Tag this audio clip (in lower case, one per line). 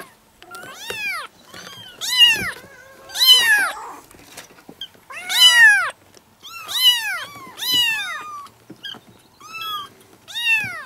cat caterwauling